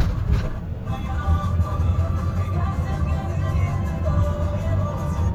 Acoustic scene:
car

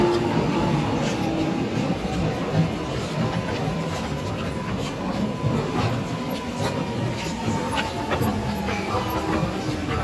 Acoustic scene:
subway station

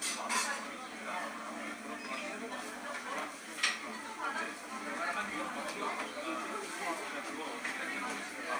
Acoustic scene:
cafe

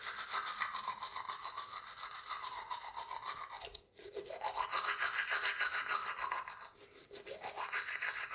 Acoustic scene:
restroom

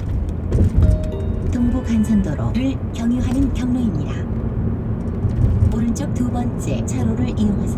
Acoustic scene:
car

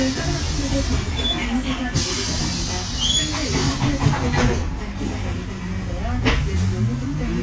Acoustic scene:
bus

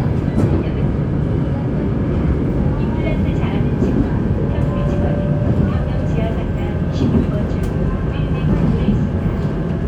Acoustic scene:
subway train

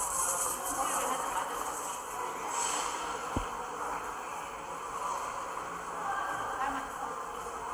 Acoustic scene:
subway station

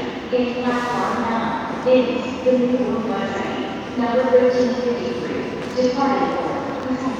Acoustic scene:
crowded indoor space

